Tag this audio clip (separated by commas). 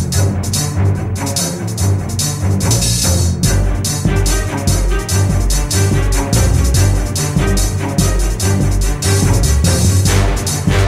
Music